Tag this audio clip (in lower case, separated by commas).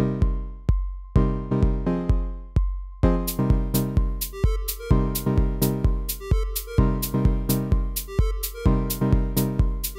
dance music, music